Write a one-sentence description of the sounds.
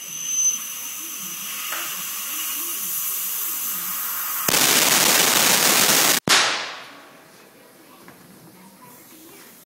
There is hissing and then a loud pop